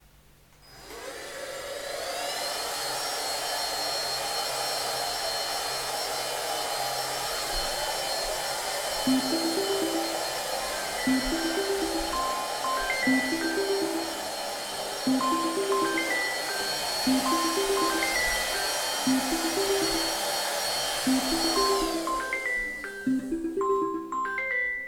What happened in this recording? I started vacuuming and the phone started ringing.